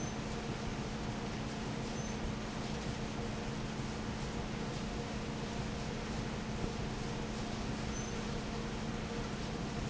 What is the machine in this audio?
fan